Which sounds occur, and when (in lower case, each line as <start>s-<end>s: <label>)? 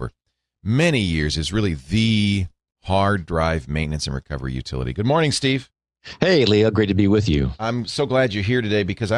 0.0s-0.1s: conversation
0.0s-0.1s: male speech
0.3s-0.6s: breathing
0.3s-2.5s: conversation
0.6s-2.5s: male speech
2.8s-5.7s: conversation
2.8s-5.7s: male speech
6.0s-6.2s: breathing
6.0s-9.1s: conversation
6.2s-9.1s: male speech